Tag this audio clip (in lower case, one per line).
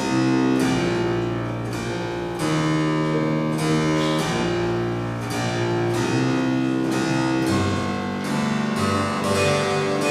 harpsichord
playing harpsichord
music